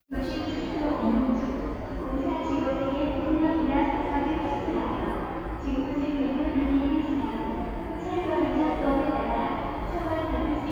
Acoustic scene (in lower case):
subway station